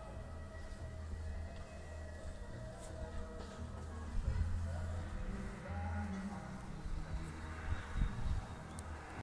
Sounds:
Speech, Music

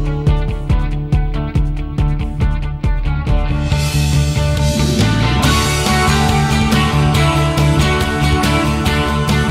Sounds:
Music, Wind noise (microphone)

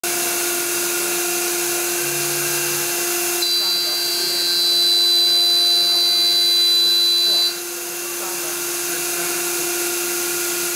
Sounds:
inside a large room or hall, Speech

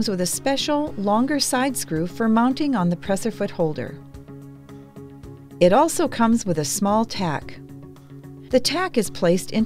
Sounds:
Speech, Music

